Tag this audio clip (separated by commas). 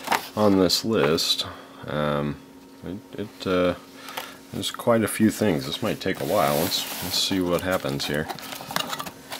Speech